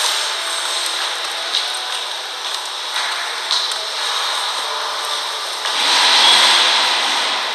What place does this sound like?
subway station